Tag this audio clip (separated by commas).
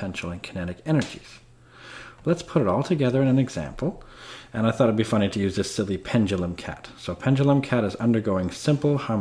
Speech